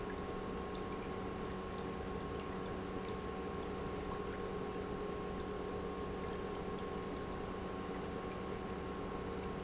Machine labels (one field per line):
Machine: pump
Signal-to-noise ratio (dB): 0 dB